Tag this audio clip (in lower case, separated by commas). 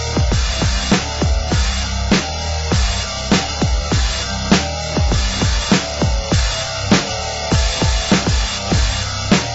music